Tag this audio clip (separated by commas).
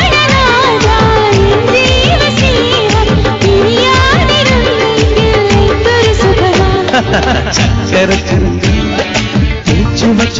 Singing, Music of Bollywood